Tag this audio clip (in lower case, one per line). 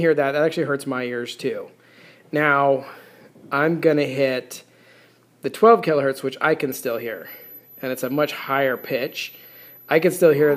speech